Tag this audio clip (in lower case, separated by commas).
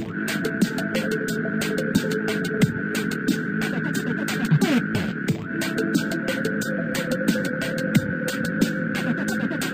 sampler, music